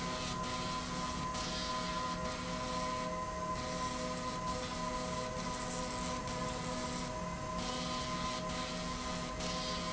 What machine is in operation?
slide rail